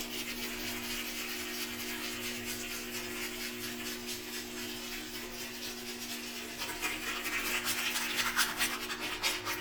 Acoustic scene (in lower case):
restroom